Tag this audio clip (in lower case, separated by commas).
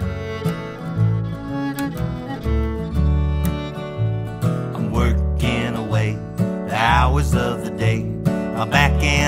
music